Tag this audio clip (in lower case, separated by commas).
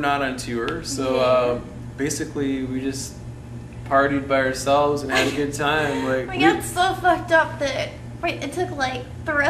speech